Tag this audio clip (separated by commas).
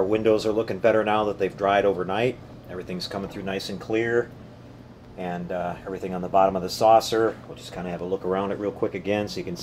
Speech